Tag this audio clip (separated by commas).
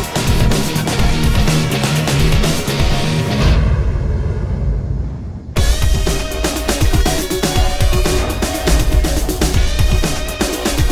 Music